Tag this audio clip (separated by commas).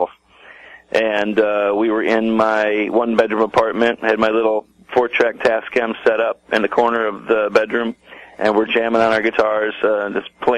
Speech